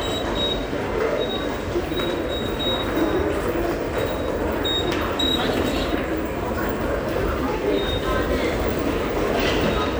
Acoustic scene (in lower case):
subway station